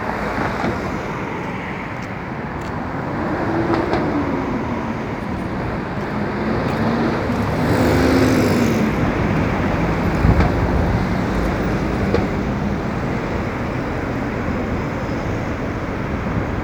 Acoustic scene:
street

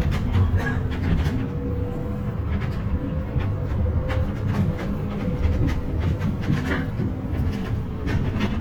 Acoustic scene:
bus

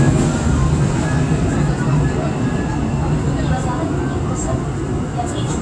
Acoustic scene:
subway train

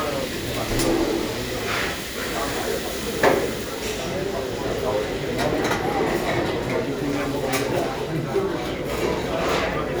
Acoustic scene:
crowded indoor space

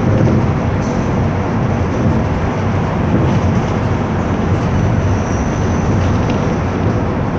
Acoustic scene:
bus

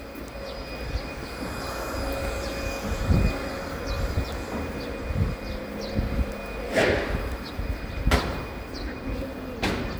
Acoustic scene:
residential area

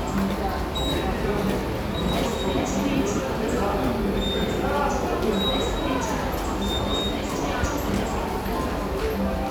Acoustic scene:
subway station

